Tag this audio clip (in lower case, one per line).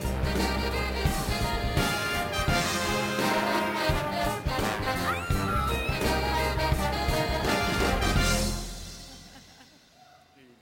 music